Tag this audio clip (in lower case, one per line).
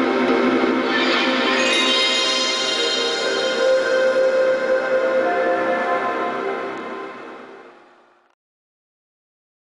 sound effect
music